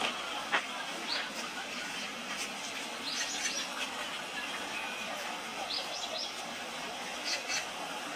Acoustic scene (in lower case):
park